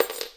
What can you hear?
metal object falling